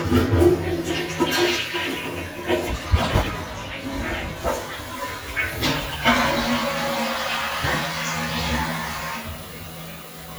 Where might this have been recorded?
in a restroom